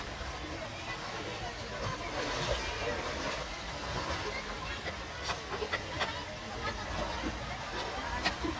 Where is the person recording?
in a park